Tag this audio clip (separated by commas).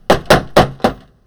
Knock, home sounds, Door